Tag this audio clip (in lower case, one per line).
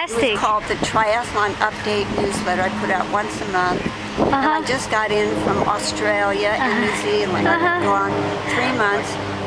speech